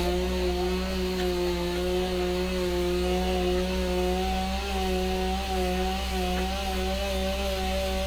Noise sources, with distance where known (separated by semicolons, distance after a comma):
chainsaw, near